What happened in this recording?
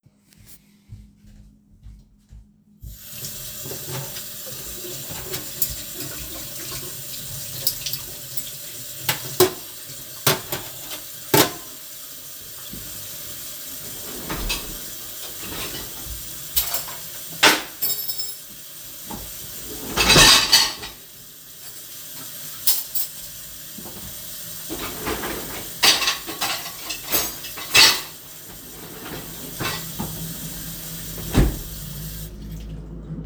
I turned on the water in the kitchen, washed to forks, opened the dishwasher. Then i accidentally dropped one fork and picked it up again. I put the forks into the dishwasher, closed it and turned of the running water